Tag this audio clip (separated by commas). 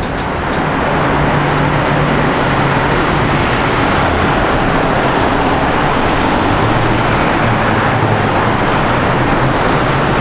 driving buses, Vehicle, Traffic noise, Bus